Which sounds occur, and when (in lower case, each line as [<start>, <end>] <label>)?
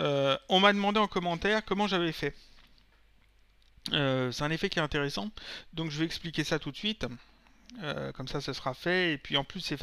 [0.00, 0.32] male speech
[0.00, 9.82] background noise
[0.46, 2.29] male speech
[2.29, 2.88] paper rustling
[3.14, 3.24] paper rustling
[3.49, 3.69] human sounds
[3.81, 5.34] male speech
[5.31, 5.64] breathing
[5.60, 7.22] male speech
[7.10, 7.63] breathing
[7.66, 9.82] male speech